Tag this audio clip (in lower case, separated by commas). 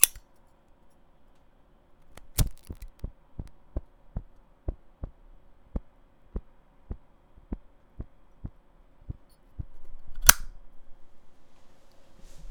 fire